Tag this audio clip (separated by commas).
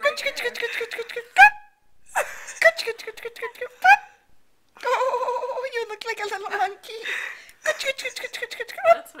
Speech